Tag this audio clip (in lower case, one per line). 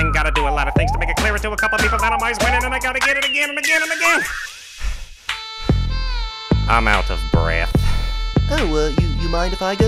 rapping